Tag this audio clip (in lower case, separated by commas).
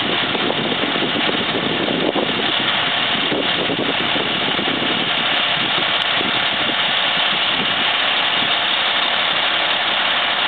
idling, medium engine (mid frequency), engine, vehicle